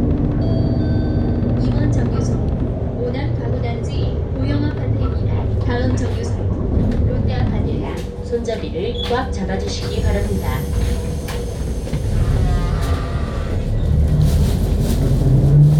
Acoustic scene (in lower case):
bus